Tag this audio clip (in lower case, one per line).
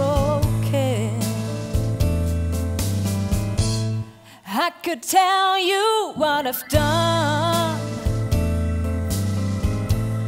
music